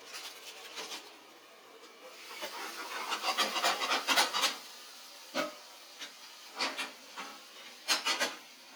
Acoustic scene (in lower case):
kitchen